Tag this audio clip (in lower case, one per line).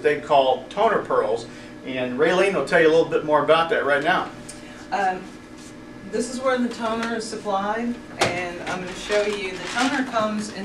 speech